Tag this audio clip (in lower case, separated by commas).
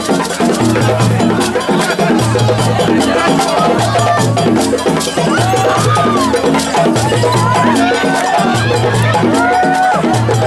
wood block, music, percussion